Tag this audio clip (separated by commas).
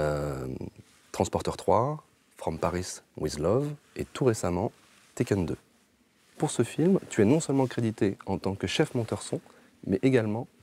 Speech